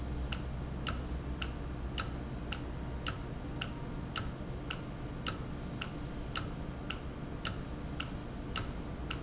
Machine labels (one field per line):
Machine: valve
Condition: normal